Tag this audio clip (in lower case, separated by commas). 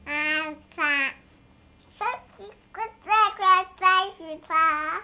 speech, human voice